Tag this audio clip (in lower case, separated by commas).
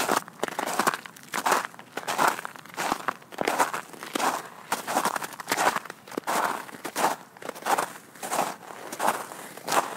footsteps on snow